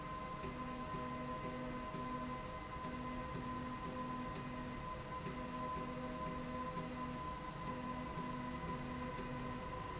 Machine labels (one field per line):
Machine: slide rail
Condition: normal